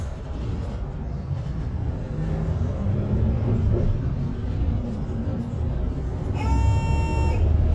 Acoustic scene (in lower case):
bus